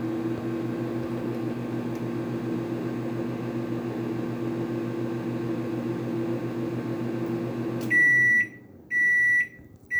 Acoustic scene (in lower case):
kitchen